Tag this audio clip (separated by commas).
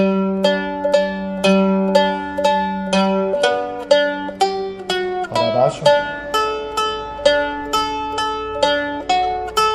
playing mandolin